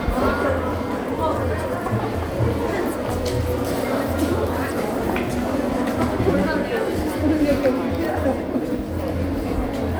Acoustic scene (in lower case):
crowded indoor space